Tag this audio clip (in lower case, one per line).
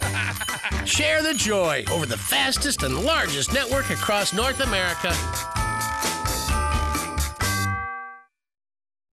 jingle bell
speech
music